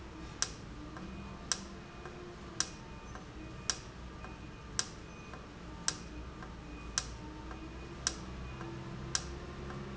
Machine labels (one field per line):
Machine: valve